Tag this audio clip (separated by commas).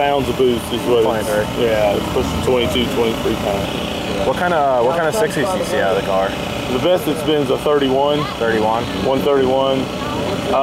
Speech, outside, urban or man-made, Vehicle, Car